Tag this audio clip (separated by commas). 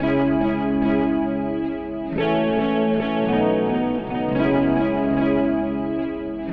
Music, Plucked string instrument, Musical instrument, Guitar